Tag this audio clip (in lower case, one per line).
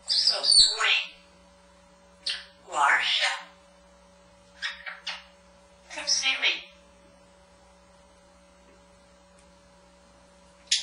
parrot talking